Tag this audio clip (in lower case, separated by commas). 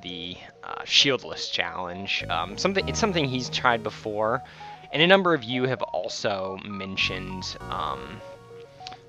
speech, music